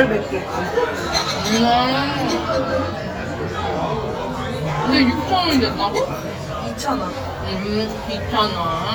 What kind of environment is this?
restaurant